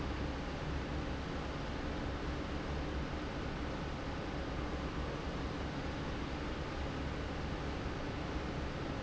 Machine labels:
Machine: fan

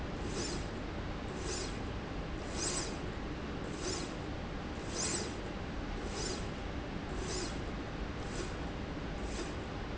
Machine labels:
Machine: slide rail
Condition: normal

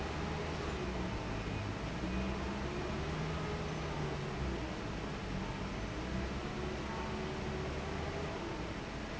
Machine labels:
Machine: fan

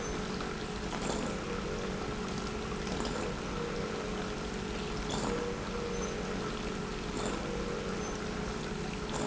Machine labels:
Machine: pump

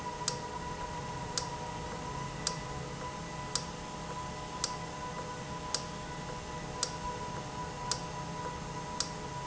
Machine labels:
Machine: valve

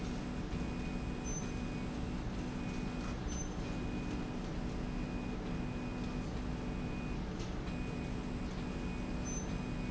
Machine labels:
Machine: slide rail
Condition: normal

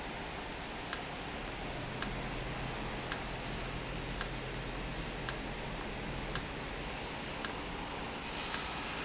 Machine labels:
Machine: valve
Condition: normal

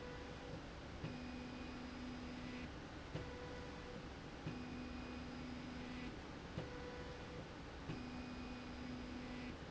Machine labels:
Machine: slide rail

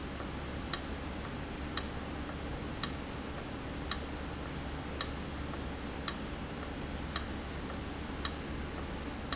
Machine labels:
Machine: valve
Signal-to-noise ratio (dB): -6 dB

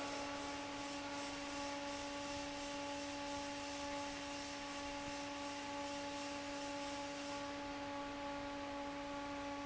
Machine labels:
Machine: fan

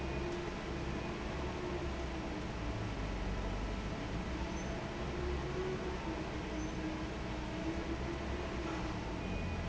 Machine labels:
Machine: fan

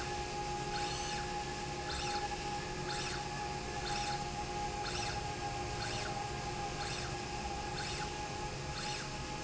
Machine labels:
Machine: slide rail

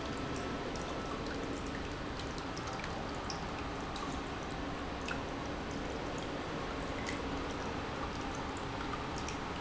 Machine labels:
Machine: pump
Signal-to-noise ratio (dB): -6 dB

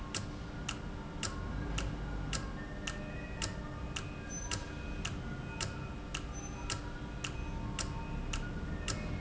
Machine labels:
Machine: valve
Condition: normal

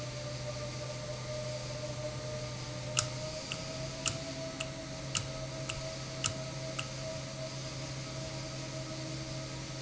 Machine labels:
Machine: valve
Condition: normal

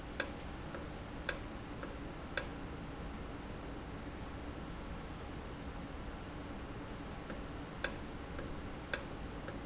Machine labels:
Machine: valve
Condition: normal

